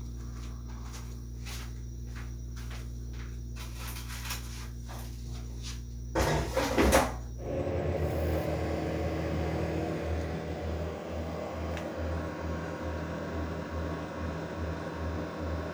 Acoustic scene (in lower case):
kitchen